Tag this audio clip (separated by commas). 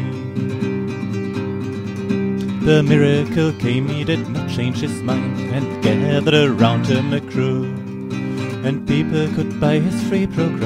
Acoustic guitar, Music